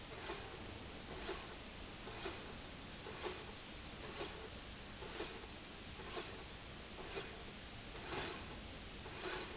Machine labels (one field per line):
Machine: slide rail